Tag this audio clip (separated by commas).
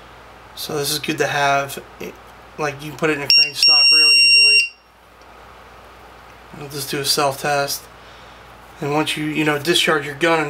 Speech